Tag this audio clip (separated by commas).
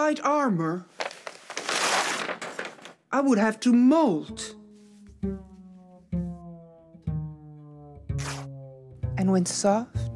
Music, inside a small room, Speech